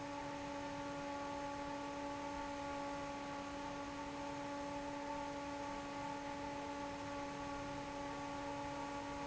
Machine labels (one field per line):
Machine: fan